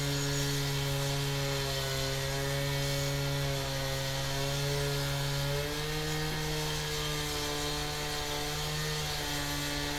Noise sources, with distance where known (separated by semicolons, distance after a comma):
unidentified powered saw